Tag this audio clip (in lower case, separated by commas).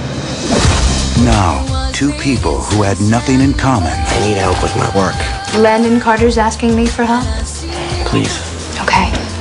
speech, music